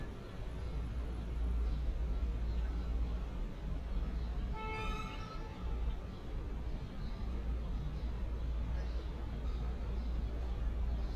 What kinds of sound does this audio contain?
car horn